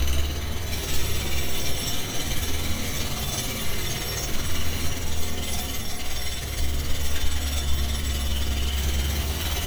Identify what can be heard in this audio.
unidentified impact machinery